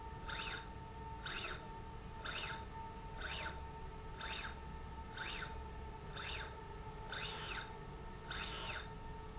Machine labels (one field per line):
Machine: slide rail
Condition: normal